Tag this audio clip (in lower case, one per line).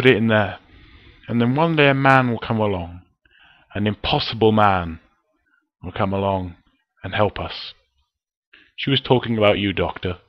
monologue